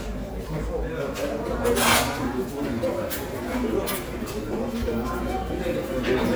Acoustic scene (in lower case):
crowded indoor space